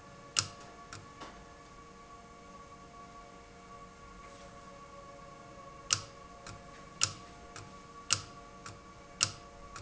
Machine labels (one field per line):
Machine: valve